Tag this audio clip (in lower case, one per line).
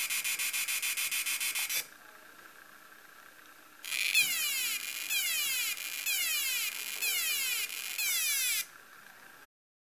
buzz